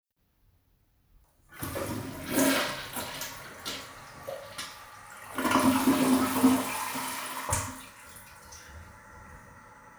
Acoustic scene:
restroom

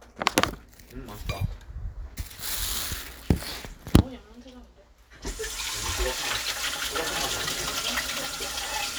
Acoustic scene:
kitchen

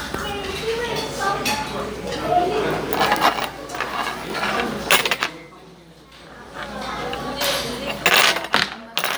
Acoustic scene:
restaurant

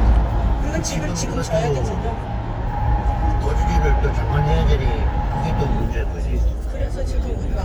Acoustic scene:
car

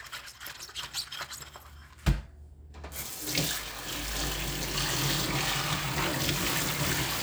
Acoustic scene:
kitchen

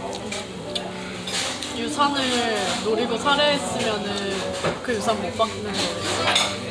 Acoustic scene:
restaurant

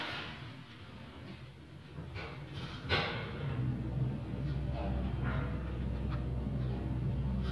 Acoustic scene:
elevator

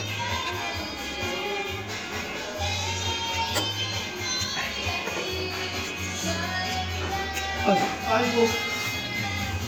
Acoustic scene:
restaurant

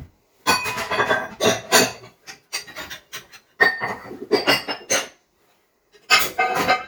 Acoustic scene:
kitchen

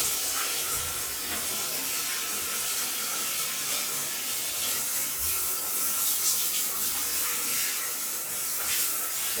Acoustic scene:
restroom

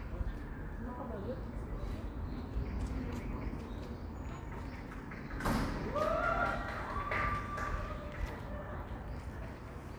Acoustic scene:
park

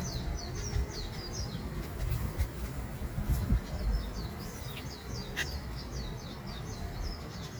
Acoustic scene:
park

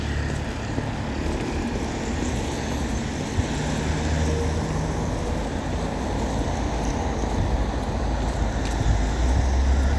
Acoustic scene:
street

